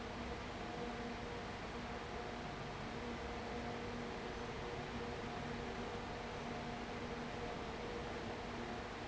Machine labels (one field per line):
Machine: fan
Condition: abnormal